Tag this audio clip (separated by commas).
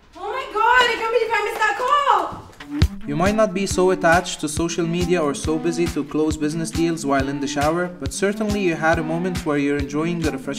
Speech, Music